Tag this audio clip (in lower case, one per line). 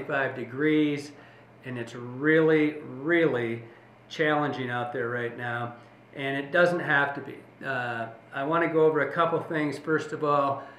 speech